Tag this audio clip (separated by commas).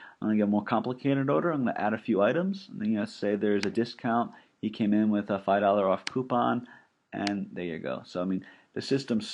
Speech